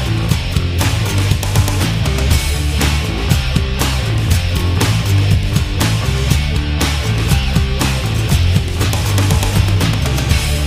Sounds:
Music

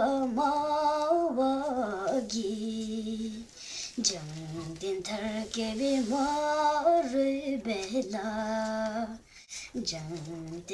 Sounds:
Child singing

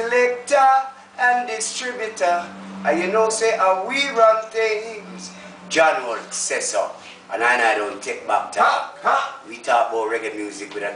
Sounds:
Speech

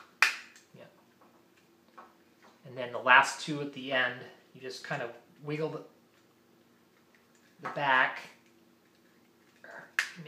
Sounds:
inside a small room, Speech

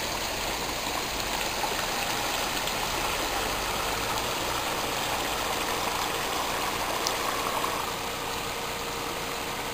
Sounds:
sailing ship

